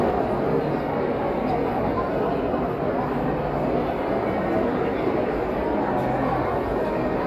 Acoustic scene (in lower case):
crowded indoor space